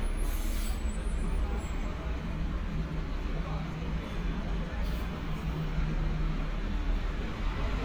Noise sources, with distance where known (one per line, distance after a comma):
large-sounding engine, near
person or small group talking